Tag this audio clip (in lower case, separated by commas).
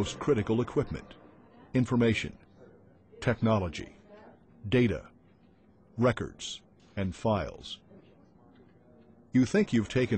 speech